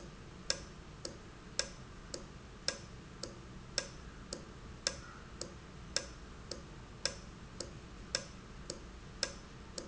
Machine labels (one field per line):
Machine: valve